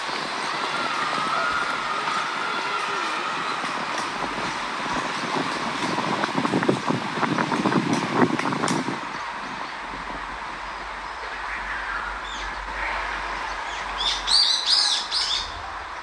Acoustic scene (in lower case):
park